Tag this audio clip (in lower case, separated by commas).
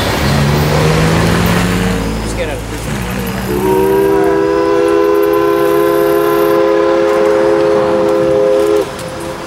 steam whistle